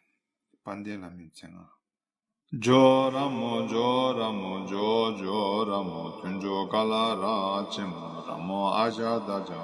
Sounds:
mantra
speech

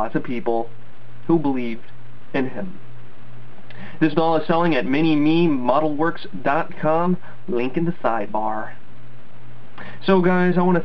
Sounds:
speech
inside a small room

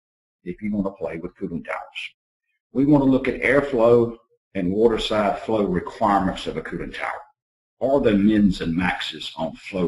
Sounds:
speech

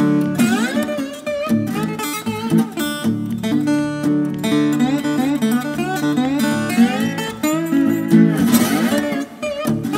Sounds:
playing steel guitar

